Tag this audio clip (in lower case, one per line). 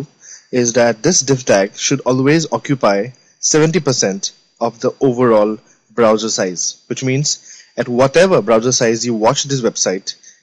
speech